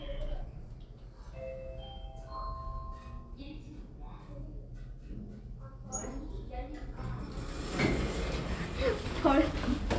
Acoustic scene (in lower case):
elevator